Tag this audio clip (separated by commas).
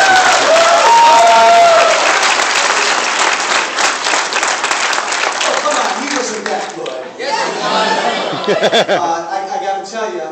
Speech, man speaking, Conversation